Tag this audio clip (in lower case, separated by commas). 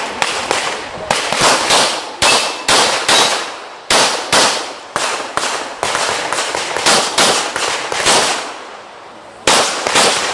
outside, rural or natural